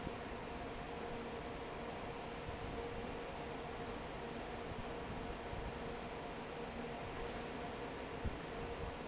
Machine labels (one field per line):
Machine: fan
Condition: normal